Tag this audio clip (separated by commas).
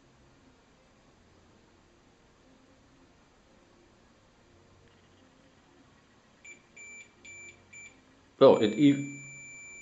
inside a small room, Speech, Buzzer